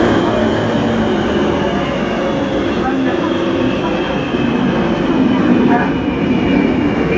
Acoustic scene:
subway train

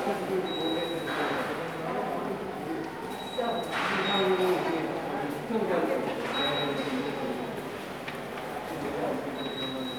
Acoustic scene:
subway station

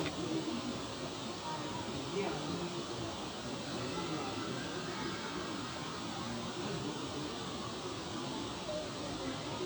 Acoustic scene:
park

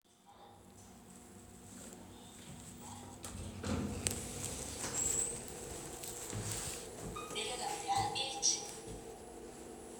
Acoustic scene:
elevator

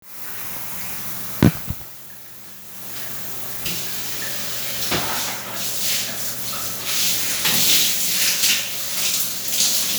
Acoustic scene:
restroom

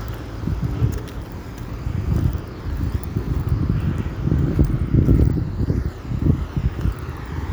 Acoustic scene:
street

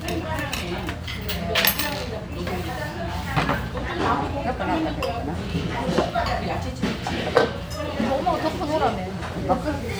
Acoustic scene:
restaurant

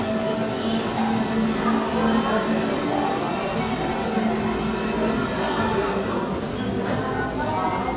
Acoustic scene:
cafe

